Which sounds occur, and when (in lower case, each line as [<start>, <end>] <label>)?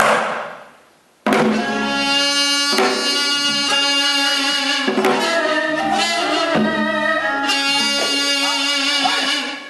[0.00, 0.66] music
[1.25, 9.65] music